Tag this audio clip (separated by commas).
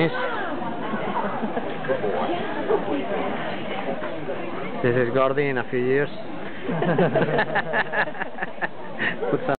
Speech